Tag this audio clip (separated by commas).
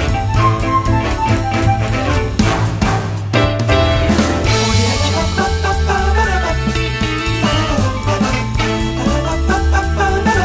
Music, Swing music